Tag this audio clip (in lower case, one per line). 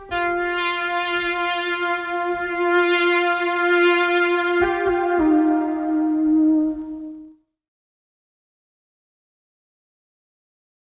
music
synthesizer